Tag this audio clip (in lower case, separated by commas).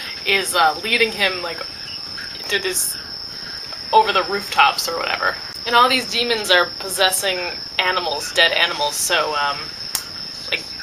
speech, inside a small room